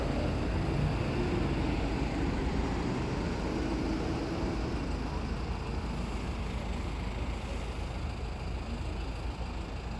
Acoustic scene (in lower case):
street